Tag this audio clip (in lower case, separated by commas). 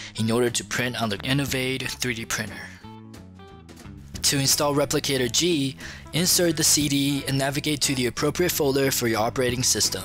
music, speech